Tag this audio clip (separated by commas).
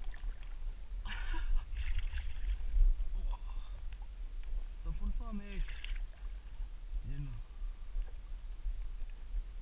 Speech